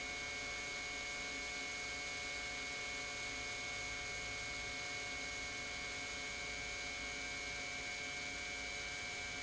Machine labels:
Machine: pump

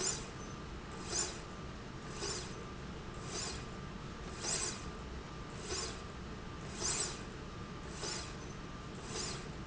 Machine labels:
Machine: slide rail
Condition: normal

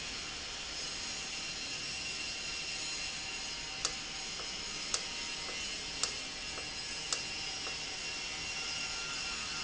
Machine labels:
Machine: valve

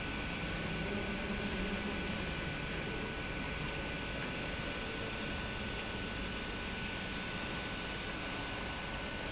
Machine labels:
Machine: pump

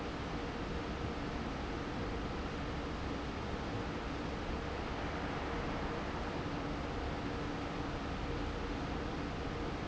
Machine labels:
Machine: fan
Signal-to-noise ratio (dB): -6 dB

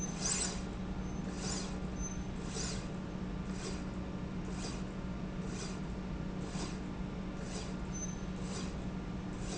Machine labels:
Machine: slide rail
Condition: normal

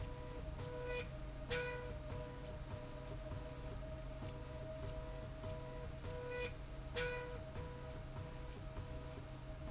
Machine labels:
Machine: slide rail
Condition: normal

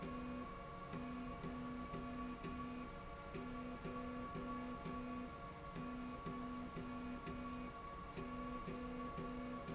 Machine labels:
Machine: slide rail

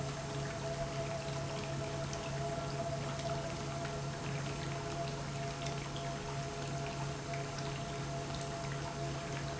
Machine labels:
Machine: pump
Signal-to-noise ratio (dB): -6 dB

